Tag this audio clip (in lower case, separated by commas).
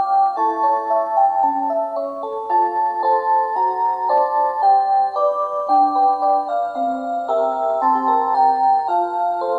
tick-tock, music